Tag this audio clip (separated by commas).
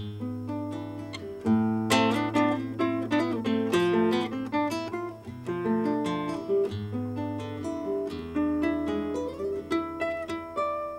Strum, Acoustic guitar, Guitar, Plucked string instrument, Musical instrument, Music